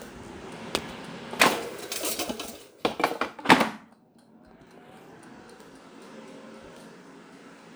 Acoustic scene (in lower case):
kitchen